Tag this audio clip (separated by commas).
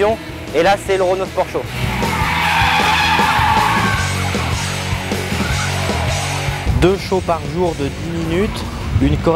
Motor vehicle (road), Speech, Skidding, Music, Vehicle, Car